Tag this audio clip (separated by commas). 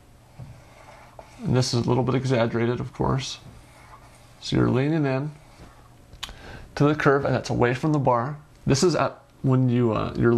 Speech, inside a small room